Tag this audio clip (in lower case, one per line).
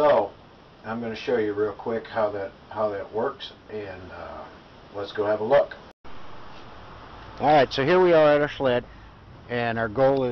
speech